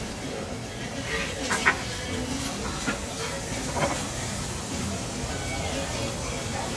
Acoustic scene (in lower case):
restaurant